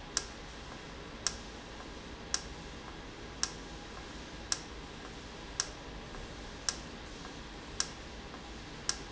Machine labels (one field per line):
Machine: valve